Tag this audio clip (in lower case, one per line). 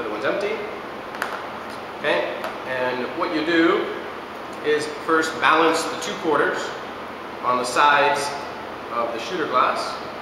speech